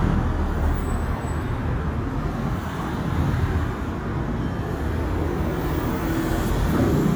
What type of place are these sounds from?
street